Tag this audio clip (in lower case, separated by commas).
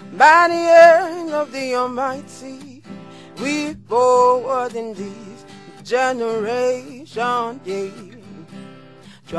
radio, music